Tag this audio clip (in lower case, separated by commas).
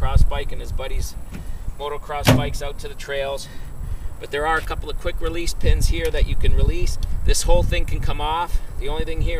speech